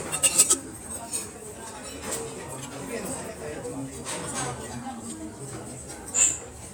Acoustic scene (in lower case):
restaurant